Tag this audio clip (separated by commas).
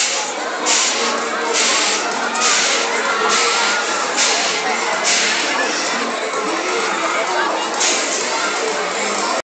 Speech